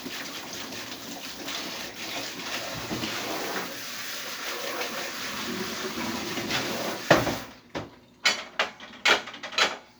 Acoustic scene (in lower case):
kitchen